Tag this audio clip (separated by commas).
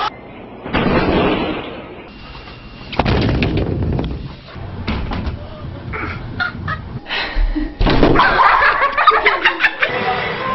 Slam